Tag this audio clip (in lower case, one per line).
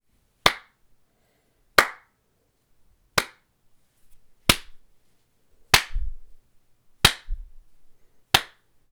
hands
clapping